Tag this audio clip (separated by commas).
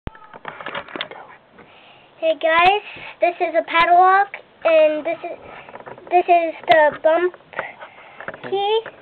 Speech